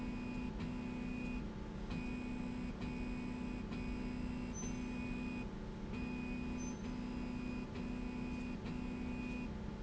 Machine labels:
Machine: slide rail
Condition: normal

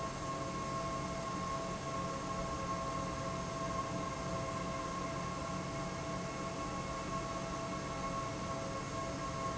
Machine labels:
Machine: fan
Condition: abnormal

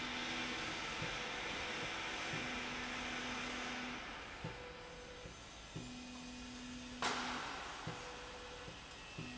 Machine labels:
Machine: slide rail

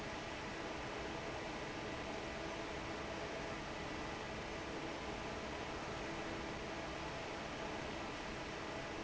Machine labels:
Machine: fan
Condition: normal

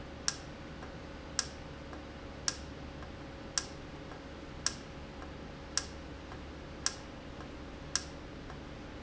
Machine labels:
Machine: valve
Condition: normal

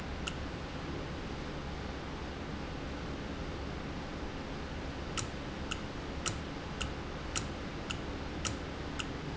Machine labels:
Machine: valve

